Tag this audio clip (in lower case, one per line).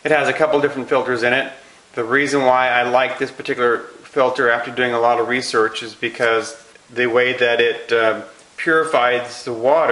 speech